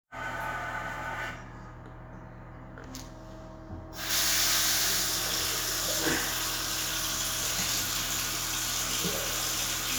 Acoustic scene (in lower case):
restroom